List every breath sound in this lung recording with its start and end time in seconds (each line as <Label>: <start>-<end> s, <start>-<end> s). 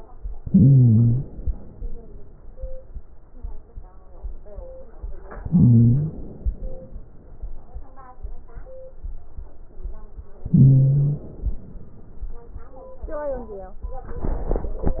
Inhalation: 0.33-1.61 s, 5.34-6.63 s, 10.47-11.86 s
Wheeze: 0.41-1.23 s, 5.34-6.17 s, 10.47-11.29 s